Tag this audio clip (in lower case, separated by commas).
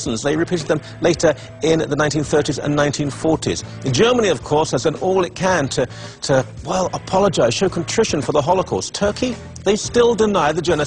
music, speech